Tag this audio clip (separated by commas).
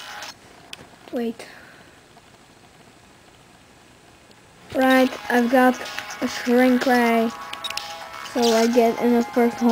Speech